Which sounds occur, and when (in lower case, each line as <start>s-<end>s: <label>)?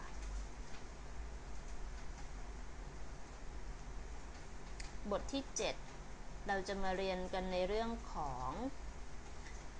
0.0s-0.3s: generic impact sounds
0.0s-9.7s: mechanisms
0.7s-0.8s: generic impact sounds
1.4s-1.7s: generic impact sounds
1.9s-2.3s: generic impact sounds
4.2s-4.4s: generic impact sounds
4.6s-4.9s: generic impact sounds
5.0s-5.7s: woman speaking
5.8s-6.0s: generic impact sounds
6.4s-8.7s: woman speaking
9.4s-9.6s: generic impact sounds